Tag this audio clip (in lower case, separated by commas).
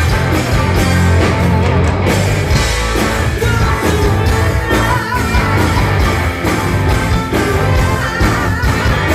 music, rock and roll